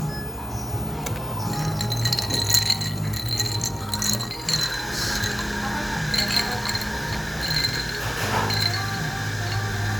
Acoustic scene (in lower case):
cafe